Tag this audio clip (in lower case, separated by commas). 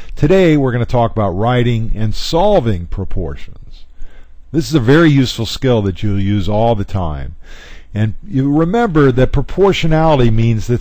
speech